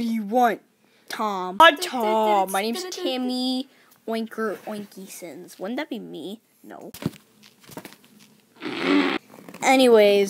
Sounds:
Speech

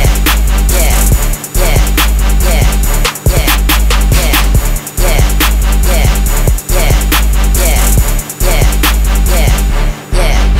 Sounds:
Music

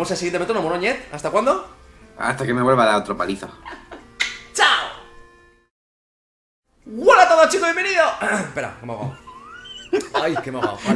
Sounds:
metronome

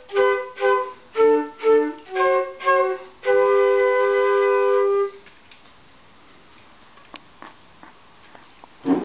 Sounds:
Music

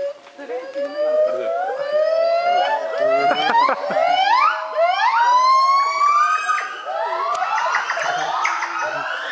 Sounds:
gibbon howling

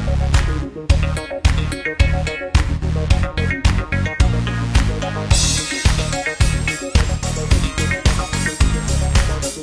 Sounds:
Music

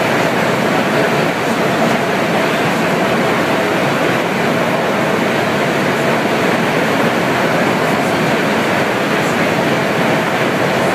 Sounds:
underground, Train

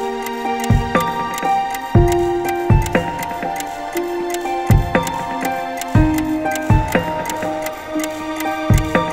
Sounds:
Tick-tock, Music

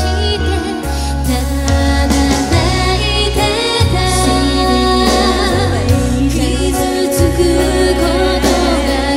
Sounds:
Singing

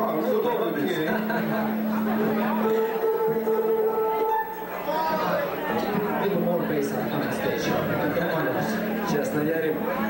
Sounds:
Speech, Music

